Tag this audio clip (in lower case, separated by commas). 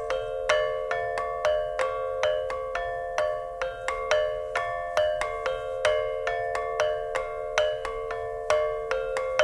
music, soundtrack music